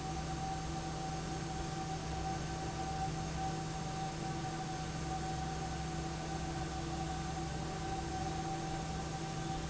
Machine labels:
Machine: fan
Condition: normal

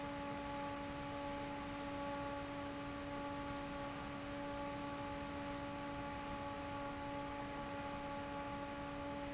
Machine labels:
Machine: fan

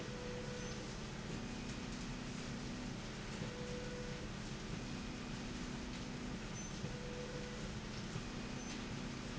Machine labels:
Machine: slide rail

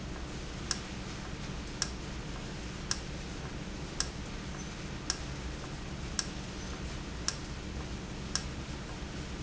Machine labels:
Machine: valve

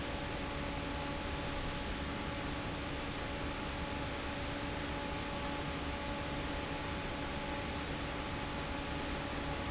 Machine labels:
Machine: fan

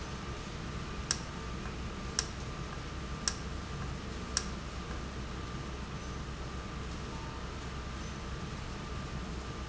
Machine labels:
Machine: valve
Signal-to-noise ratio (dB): -6 dB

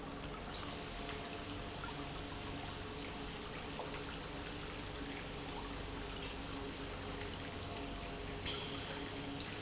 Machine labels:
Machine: pump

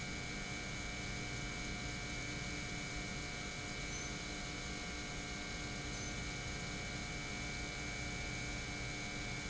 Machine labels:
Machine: pump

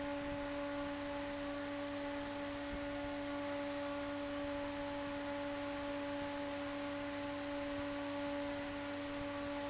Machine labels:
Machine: fan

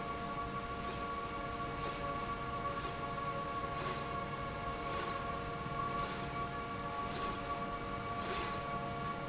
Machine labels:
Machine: slide rail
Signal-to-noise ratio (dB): -6 dB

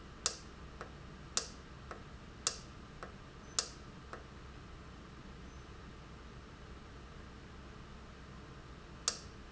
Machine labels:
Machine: valve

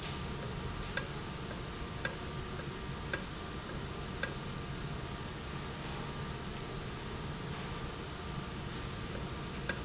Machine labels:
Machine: valve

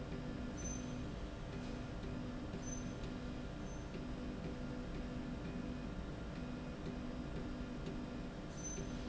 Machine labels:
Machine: slide rail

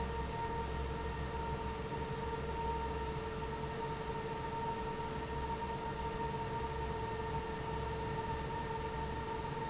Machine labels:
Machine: fan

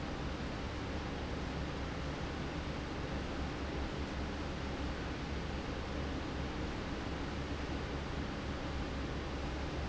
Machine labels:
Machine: fan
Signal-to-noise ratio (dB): -6 dB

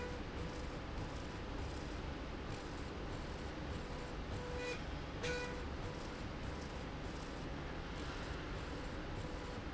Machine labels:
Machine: slide rail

